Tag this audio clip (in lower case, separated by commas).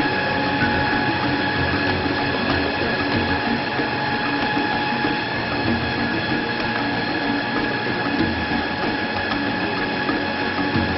lathe spinning